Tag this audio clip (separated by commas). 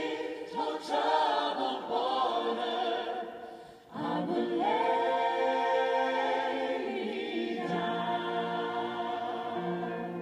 Music